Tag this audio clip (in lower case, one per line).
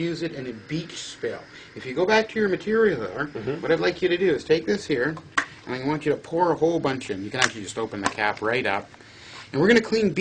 speech
inside a small room